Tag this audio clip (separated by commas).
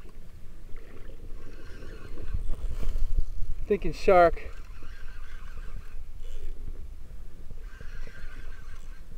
Speech, Boat